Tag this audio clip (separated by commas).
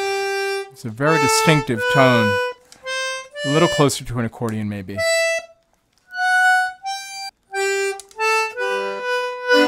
Accordion